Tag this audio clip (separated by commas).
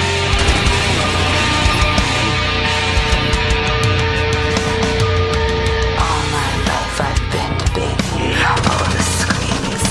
Music